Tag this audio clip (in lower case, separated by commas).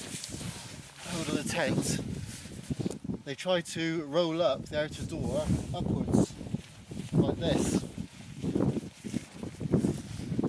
speech